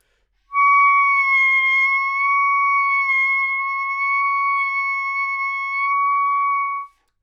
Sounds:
musical instrument, music, woodwind instrument

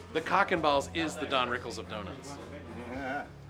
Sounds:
conversation, speech, human voice

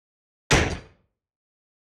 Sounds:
explosion, gunfire

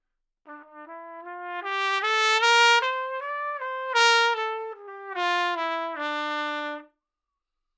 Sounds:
musical instrument, brass instrument, music, trumpet

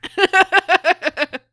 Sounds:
laughter, human voice

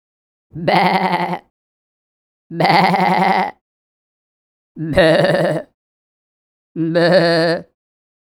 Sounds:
animal, human voice

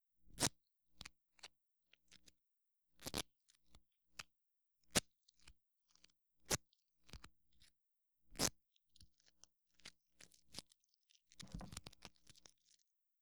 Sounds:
duct tape, domestic sounds

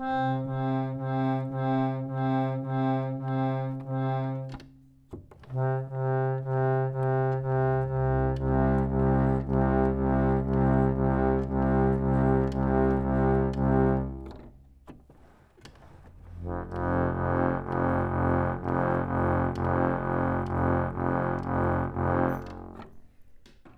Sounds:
music, musical instrument, organ, keyboard (musical)

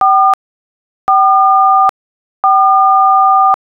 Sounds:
telephone, alarm

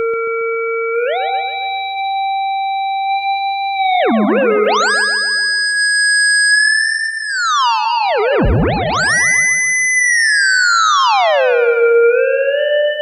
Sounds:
music, musical instrument

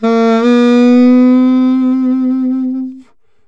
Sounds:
music, musical instrument, woodwind instrument

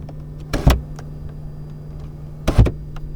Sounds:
motor vehicle (road), car, vehicle

